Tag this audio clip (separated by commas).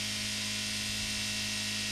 Car, Vehicle, Motor vehicle (road)